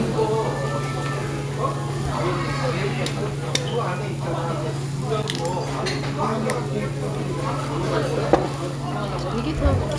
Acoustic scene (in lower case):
restaurant